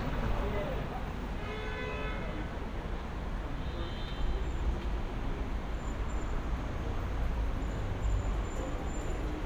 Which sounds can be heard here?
medium-sounding engine, car horn, unidentified human voice